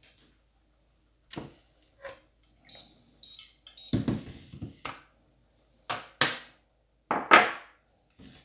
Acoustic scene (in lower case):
kitchen